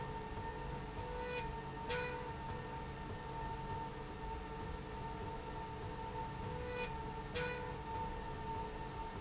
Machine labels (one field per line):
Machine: slide rail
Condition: normal